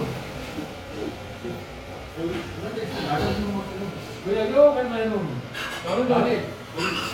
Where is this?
in a restaurant